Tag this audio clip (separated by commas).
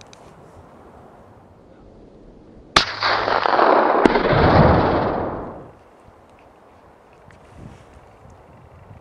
Explosion